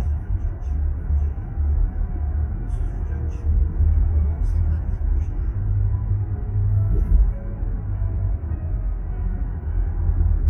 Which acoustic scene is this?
car